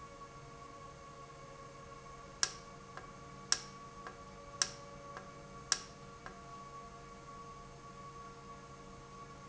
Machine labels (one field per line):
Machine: valve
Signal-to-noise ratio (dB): 6 dB